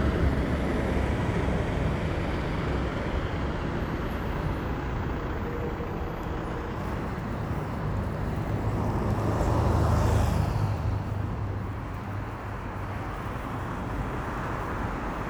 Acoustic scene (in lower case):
street